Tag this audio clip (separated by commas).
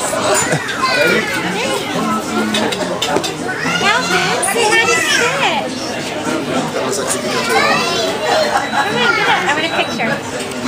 Speech, inside a public space